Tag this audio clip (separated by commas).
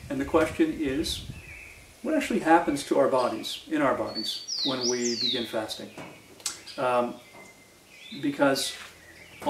outside, rural or natural, Speech